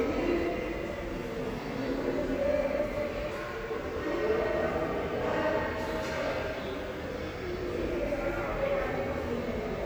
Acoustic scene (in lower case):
subway station